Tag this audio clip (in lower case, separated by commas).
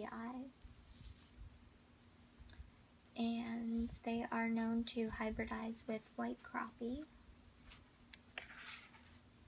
inside a small room, speech